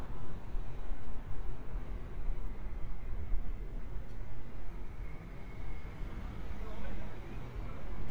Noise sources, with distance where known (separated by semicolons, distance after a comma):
background noise